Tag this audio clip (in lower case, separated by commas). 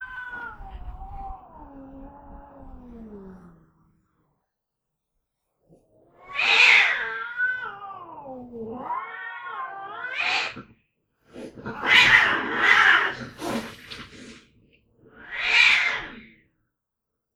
pets, cat, hiss, animal